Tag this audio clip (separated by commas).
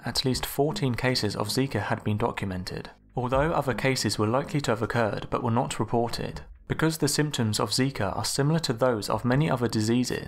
Speech